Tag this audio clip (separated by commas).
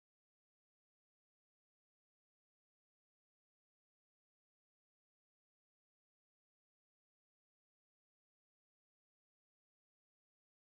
chimpanzee pant-hooting